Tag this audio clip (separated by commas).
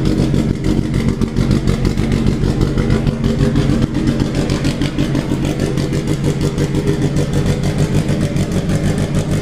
Engine, Idling